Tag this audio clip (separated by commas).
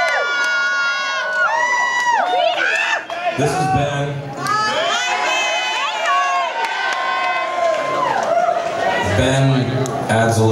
Speech